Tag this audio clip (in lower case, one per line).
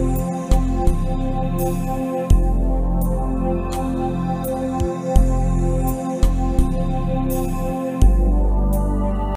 soundtrack music
music